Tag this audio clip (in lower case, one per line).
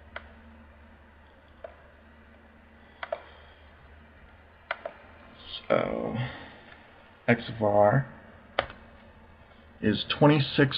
computer keyboard